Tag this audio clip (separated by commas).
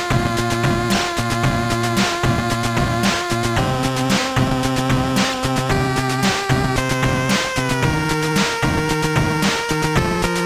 Video game music, Music